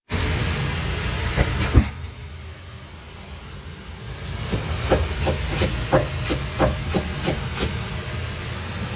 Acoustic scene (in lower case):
kitchen